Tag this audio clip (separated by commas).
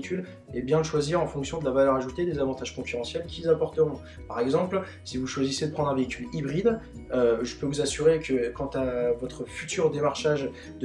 Music, Speech